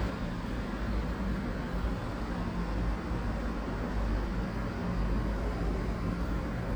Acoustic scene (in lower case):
residential area